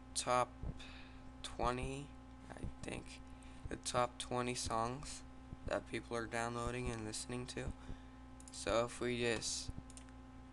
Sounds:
speech

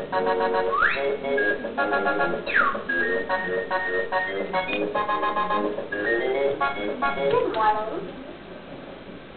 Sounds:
speech

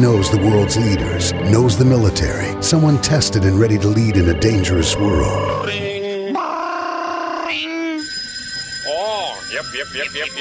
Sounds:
speech
music

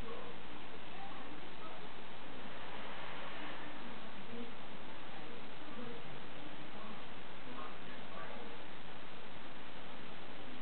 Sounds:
speech

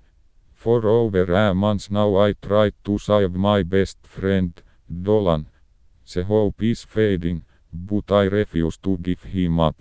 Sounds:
speech

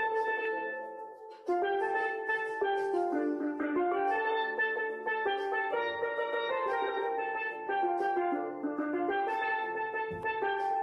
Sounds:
playing steelpan

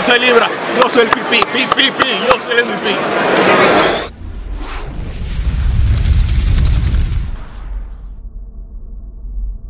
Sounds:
speech

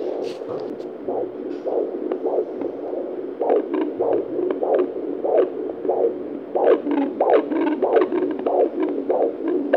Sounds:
heartbeat

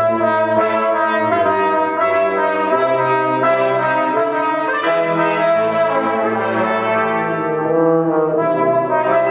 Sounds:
brass instrument
music

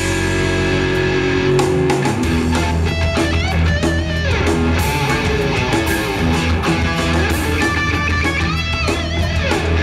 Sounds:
guitar
musical instrument
plucked string instrument
music

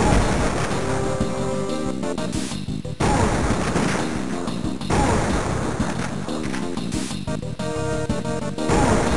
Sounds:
music

